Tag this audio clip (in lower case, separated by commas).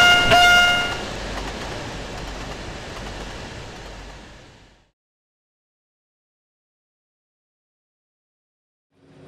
rail transport, train, railroad car